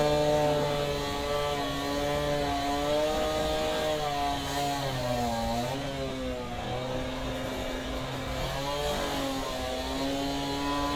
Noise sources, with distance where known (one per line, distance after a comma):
unidentified powered saw, near